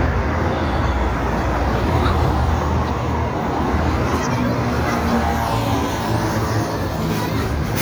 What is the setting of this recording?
street